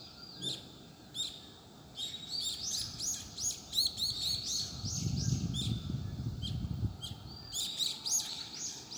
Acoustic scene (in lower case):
park